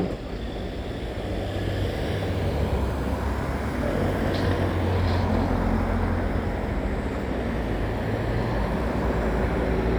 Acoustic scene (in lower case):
residential area